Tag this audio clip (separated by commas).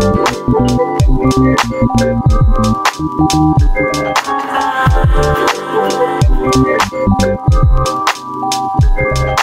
Music